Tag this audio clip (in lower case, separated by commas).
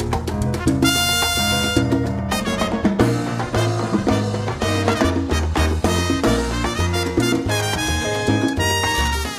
orchestra, drum kit, drum, music, musical instrument